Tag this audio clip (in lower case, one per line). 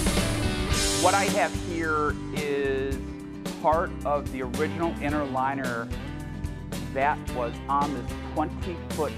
music
speech